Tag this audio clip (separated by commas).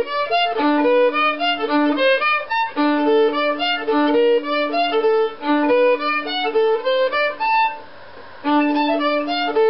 Violin, Music, Musical instrument